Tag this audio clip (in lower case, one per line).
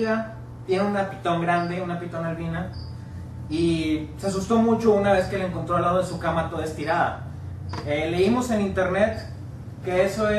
inside a large room or hall
speech